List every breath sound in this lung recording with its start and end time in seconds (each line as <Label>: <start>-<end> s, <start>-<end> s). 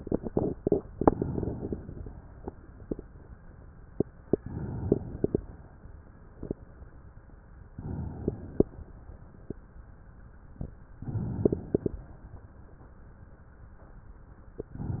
Inhalation: 0.89-2.05 s, 4.31-5.47 s, 7.71-8.99 s, 10.98-12.31 s
Exhalation: 2.07-3.22 s, 5.46-7.23 s